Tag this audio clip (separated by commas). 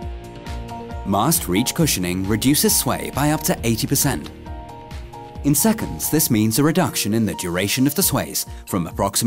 Music, Speech